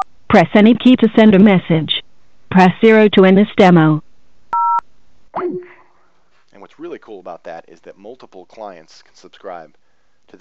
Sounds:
Speech

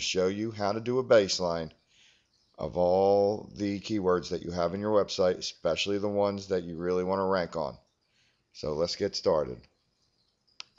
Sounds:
Speech

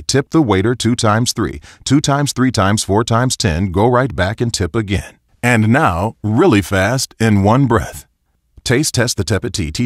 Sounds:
Speech synthesizer

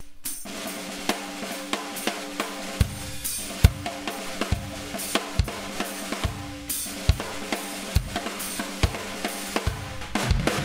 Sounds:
Drum, Bass drum, Rimshot, Drum roll, Snare drum, Percussion, Drum kit

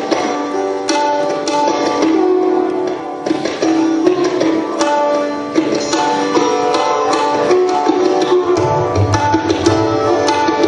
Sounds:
Music, Sitar

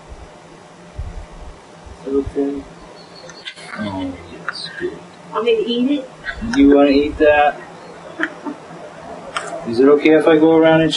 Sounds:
Speech

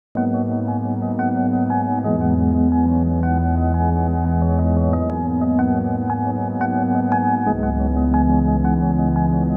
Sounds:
Ambient music, Music

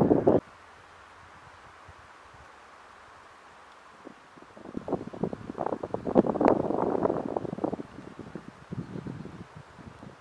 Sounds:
Wind noise (microphone), Wind

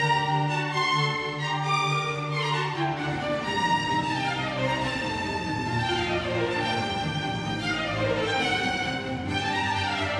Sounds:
Violin, Music, Musical instrument

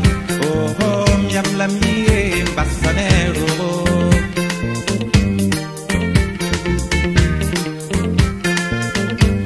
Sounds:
Music

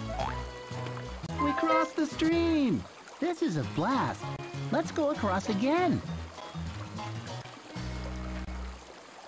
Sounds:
Speech, Music

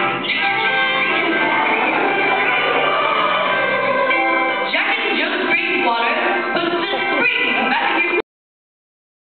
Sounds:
Music, Speech

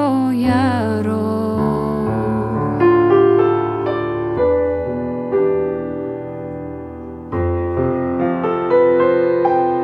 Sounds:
Piano, Music

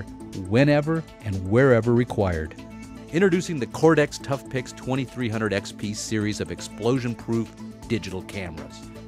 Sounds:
Music, Speech

